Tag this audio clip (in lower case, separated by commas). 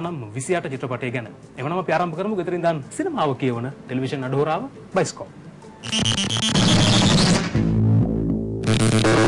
music, speech, inside a large room or hall